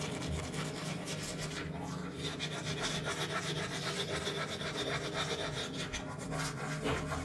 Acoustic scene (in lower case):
restroom